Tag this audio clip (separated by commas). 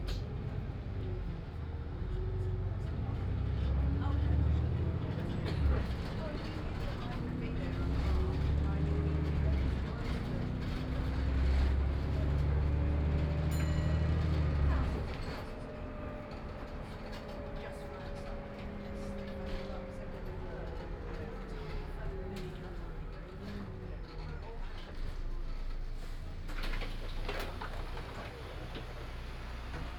Motor vehicle (road), Vehicle, Bus